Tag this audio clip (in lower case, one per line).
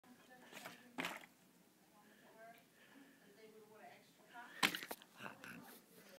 speech